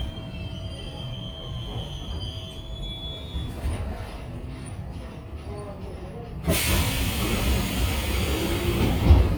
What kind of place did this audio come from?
subway train